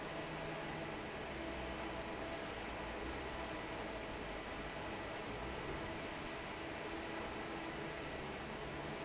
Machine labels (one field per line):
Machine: fan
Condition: normal